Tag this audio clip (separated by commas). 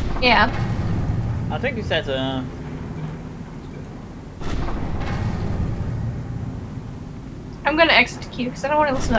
Field recording, Speech